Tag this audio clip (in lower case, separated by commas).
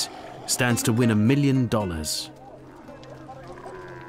speech, music